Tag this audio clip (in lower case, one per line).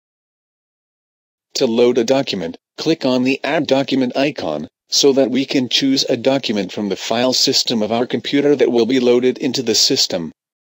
speech